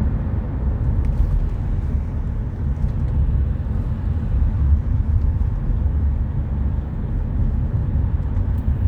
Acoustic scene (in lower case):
car